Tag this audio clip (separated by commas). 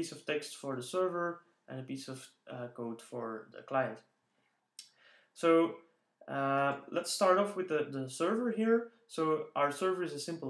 Speech